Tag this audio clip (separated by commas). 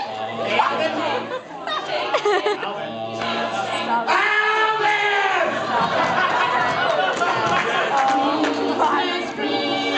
Speech